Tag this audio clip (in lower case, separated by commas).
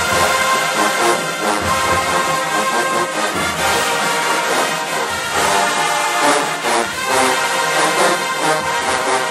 music